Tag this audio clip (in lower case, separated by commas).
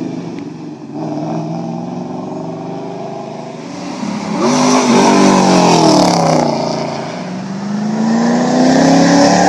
clatter